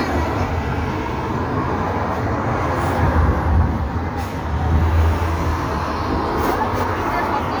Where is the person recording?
on a street